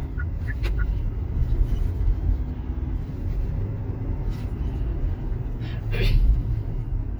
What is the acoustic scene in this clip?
car